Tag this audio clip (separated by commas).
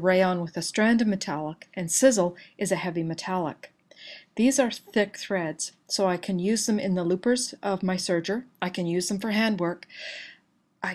Speech